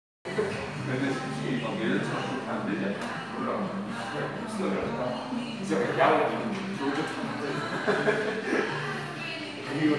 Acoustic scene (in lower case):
crowded indoor space